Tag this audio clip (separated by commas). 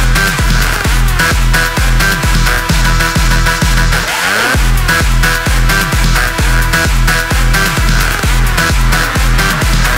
Electronic dance music